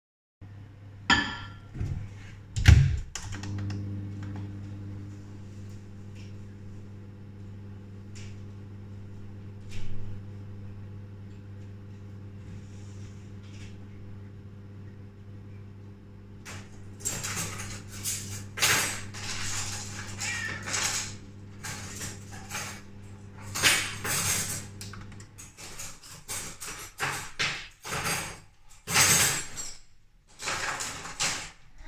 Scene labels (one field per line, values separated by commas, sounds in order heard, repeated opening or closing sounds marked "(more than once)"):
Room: kitchen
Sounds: microwave, cutlery and dishes